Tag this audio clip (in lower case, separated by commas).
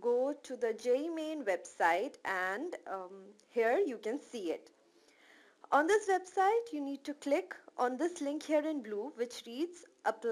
speech